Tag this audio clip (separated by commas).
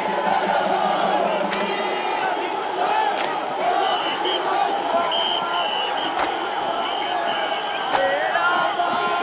Music, Speech